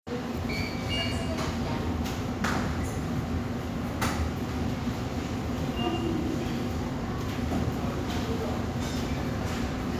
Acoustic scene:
subway station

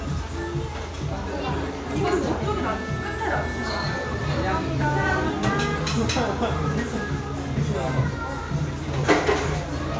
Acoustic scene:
cafe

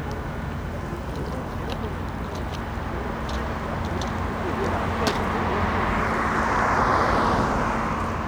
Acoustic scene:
street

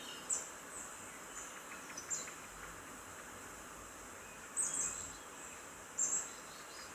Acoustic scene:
park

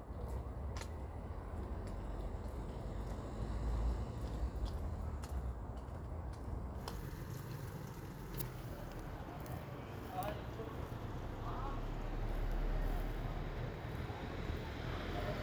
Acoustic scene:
residential area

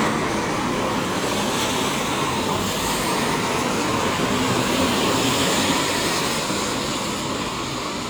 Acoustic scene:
street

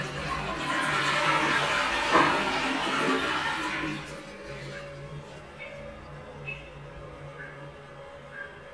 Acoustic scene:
restroom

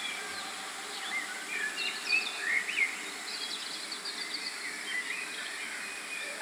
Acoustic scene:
park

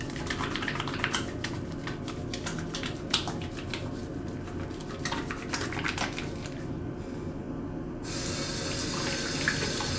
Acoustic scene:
restroom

